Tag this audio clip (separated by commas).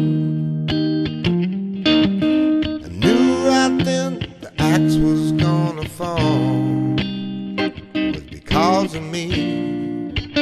Musical instrument, Plucked string instrument, Music, Guitar, Electric guitar, Strum